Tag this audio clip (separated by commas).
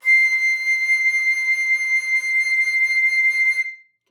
Music, Musical instrument, Wind instrument